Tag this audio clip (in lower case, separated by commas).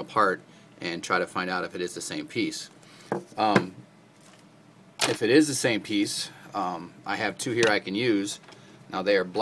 speech